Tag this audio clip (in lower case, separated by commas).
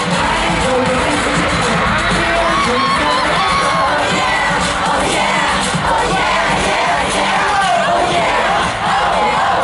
jazz, music, rhythm and blues